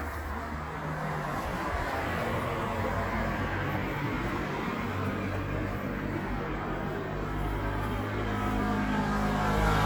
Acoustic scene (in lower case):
street